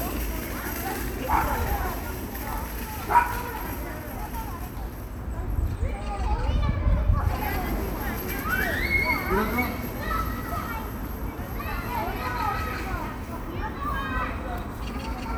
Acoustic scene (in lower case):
park